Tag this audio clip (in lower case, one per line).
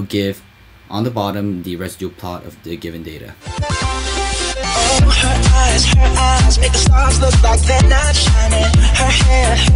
dance music